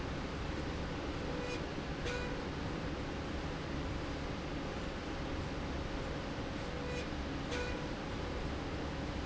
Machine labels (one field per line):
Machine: slide rail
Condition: normal